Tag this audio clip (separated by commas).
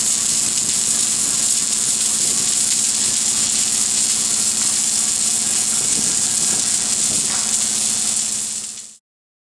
arc welding